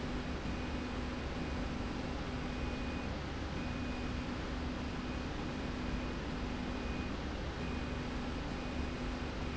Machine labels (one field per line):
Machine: slide rail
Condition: normal